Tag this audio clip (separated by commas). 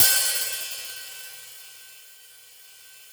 Cymbal, Percussion, Musical instrument, Music, Hi-hat